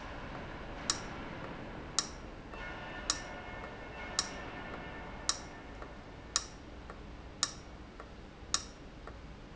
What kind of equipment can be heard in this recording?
valve